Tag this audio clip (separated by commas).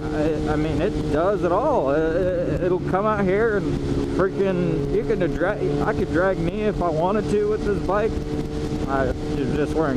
Speech